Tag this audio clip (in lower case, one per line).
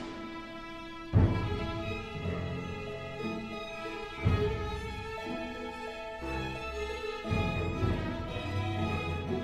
music
sad music